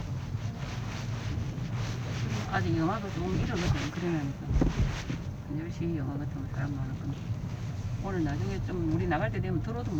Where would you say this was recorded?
in a car